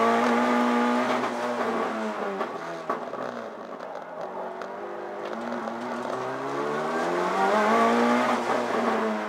A vehicle engine revs as it drives on the road